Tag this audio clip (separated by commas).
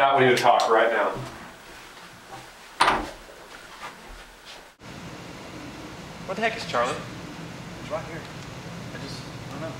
Speech, inside a small room